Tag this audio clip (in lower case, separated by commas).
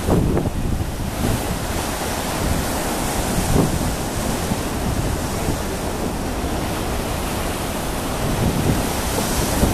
water vehicle, vehicle, ocean burbling, ocean